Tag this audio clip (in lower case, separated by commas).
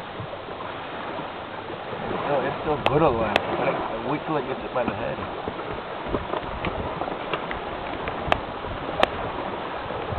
outside, rural or natural, speech